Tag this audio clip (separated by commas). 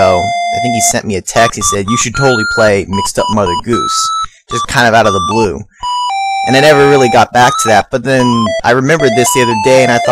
Music, Speech